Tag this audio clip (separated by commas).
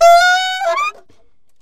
Music, Wind instrument, Musical instrument